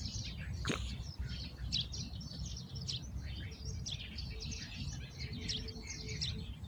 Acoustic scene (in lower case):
park